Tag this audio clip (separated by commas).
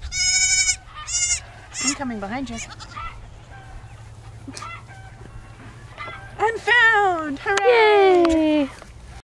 Bleat, Speech, Sheep